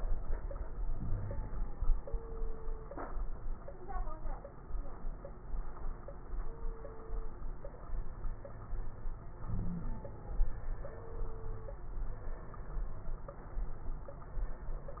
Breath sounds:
0.90-1.71 s: inhalation
0.90-1.71 s: wheeze
9.44-10.06 s: inhalation
9.44-10.06 s: wheeze

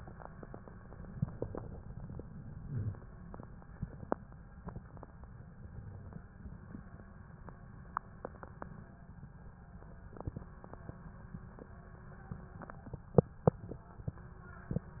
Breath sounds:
2.60-3.19 s: inhalation

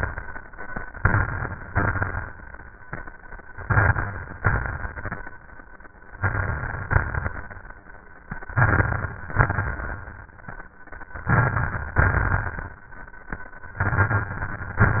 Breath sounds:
0.93-1.69 s: inhalation
0.93-1.69 s: crackles
1.70-2.39 s: exhalation
1.70-2.39 s: crackles
3.63-4.39 s: inhalation
3.63-4.39 s: crackles
4.41-5.31 s: exhalation
4.41-5.31 s: crackles
6.18-6.92 s: inhalation
6.18-6.92 s: crackles
6.94-7.60 s: exhalation
6.94-7.60 s: crackles
8.54-9.20 s: inhalation
8.54-9.20 s: crackles
9.32-10.12 s: exhalation
9.32-10.12 s: crackles
11.26-11.99 s: inhalation
11.26-11.99 s: crackles
12.00-12.73 s: exhalation
12.00-12.73 s: crackles
13.79-14.73 s: inhalation
13.79-14.73 s: crackles
14.79-15.00 s: exhalation

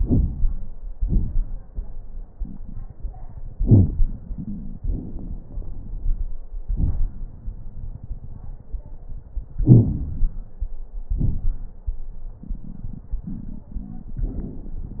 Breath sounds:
0.00-0.71 s: inhalation
0.00-0.71 s: crackles
0.93-1.64 s: exhalation
0.93-1.64 s: crackles
9.64-10.67 s: crackles
9.65-10.66 s: inhalation
11.17-11.73 s: exhalation
11.17-11.73 s: crackles

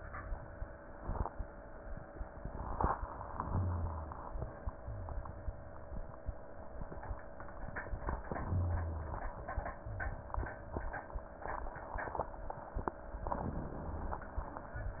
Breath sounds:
3.26-4.31 s: inhalation
3.47-4.16 s: rhonchi
8.27-9.32 s: inhalation
8.45-9.21 s: rhonchi
13.24-14.29 s: inhalation

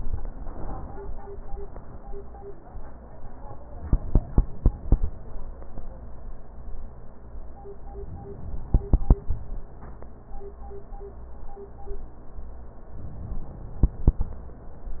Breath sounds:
8.05-9.44 s: inhalation
12.95-14.34 s: inhalation

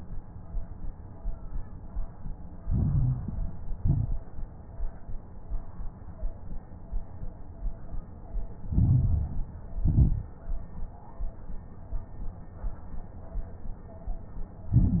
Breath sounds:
2.64-3.76 s: inhalation
2.64-3.76 s: crackles
3.78-4.29 s: exhalation
3.78-4.29 s: crackles
8.68-9.80 s: inhalation
8.68-9.80 s: crackles
9.82-10.34 s: exhalation
9.82-10.34 s: crackles
14.73-15.00 s: inhalation
14.73-15.00 s: crackles

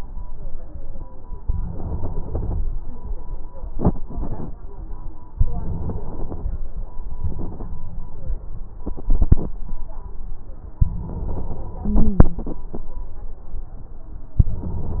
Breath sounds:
1.45-2.70 s: inhalation
3.72-4.53 s: exhalation
5.38-6.51 s: inhalation
7.17-7.74 s: exhalation
11.83-12.46 s: stridor
14.41-15.00 s: inhalation

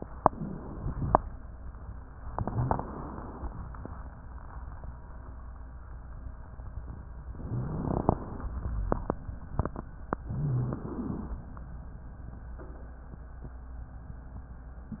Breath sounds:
0.20-1.11 s: inhalation
0.26-0.62 s: rhonchi
2.37-3.42 s: inhalation
2.41-2.77 s: rhonchi
7.39-8.57 s: inhalation
7.47-7.83 s: rhonchi
10.24-10.88 s: rhonchi
10.24-11.35 s: inhalation

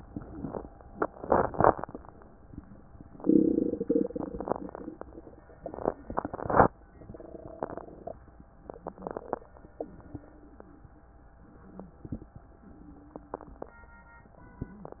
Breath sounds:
0.00-0.69 s: exhalation
0.00-0.69 s: crackles
8.64-9.52 s: inhalation
8.64-9.52 s: crackles
9.74-10.96 s: exhalation
9.74-10.96 s: wheeze
11.70-12.35 s: inhalation
11.70-12.35 s: crackles
12.67-14.16 s: exhalation
12.67-14.16 s: wheeze

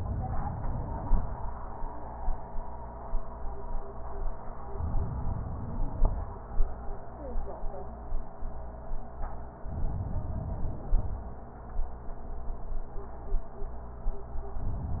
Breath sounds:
4.74-6.20 s: inhalation
9.70-11.15 s: inhalation

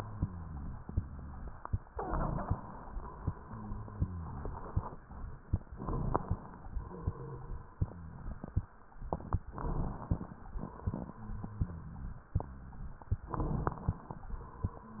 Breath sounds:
0.00-0.77 s: rhonchi
1.93-2.79 s: inhalation
3.23-4.98 s: exhalation
3.35-4.64 s: rhonchi
5.67-6.39 s: crackles
5.72-6.43 s: inhalation
6.63-8.70 s: exhalation
6.88-8.64 s: rhonchi
9.52-10.38 s: inhalation
10.04-10.39 s: crackles
10.60-12.99 s: exhalation
11.10-12.81 s: rhonchi
13.23-14.04 s: crackles
13.29-14.05 s: inhalation
14.84-15.00 s: rhonchi

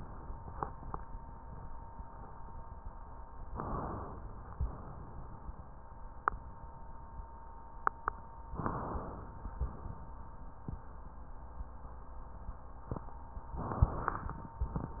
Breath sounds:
3.47-4.50 s: inhalation
4.50-5.45 s: exhalation
8.60-9.54 s: inhalation
9.54-10.32 s: exhalation
13.57-14.57 s: inhalation

